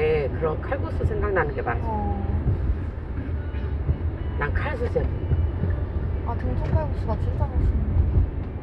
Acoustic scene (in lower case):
car